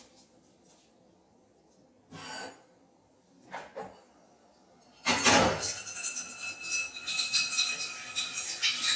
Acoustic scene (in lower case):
kitchen